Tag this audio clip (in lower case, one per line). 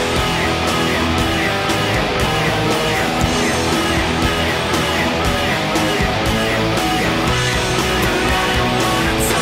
strum
electric guitar
guitar
acoustic guitar
music
musical instrument
plucked string instrument